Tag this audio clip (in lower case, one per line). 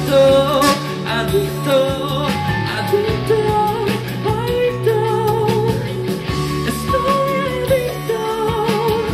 singing
music